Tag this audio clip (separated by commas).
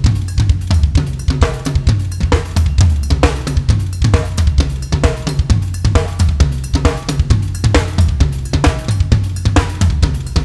Musical instrument, Cymbal, Percussion, Drum, Drum kit, Snare drum, Music